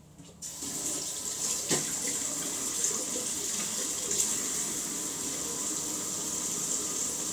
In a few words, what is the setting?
restroom